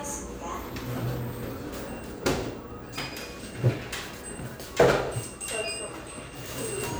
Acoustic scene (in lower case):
cafe